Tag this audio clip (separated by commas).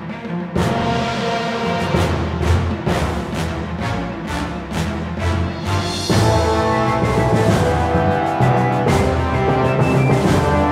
Music